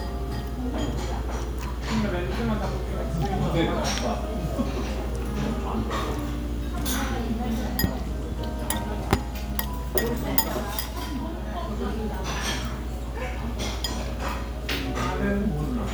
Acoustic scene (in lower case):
restaurant